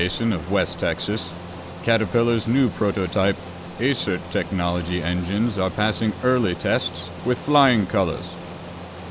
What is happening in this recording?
A man with an older sounding voice is conversing something out loud